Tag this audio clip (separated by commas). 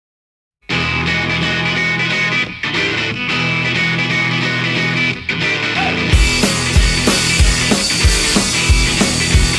Music, Electric guitar